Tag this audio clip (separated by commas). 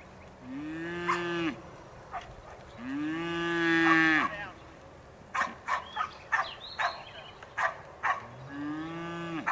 livestock, cattle mooing, bovinae, Moo